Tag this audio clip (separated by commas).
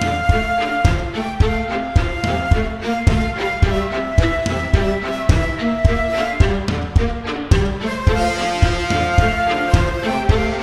Music